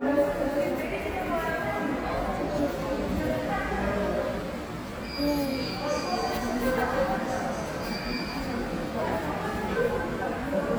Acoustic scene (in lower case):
subway station